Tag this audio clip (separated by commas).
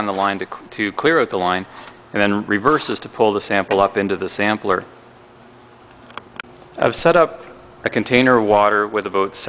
Speech